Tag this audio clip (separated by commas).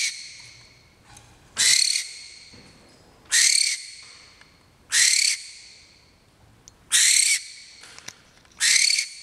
bird song, Owl, Bird